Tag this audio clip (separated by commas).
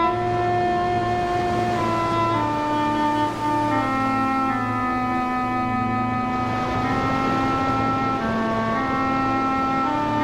Music